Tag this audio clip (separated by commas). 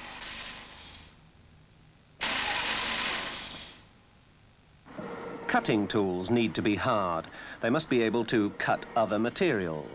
Speech